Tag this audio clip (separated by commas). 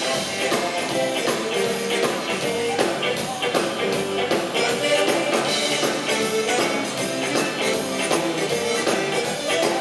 Music